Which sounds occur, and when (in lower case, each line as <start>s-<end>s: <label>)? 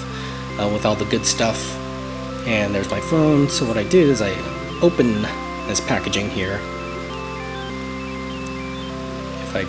0.0s-0.4s: breathing
0.0s-9.6s: music
0.5s-1.8s: male speech
2.4s-4.4s: male speech
4.8s-5.3s: male speech
5.6s-6.6s: male speech
8.4s-8.5s: tick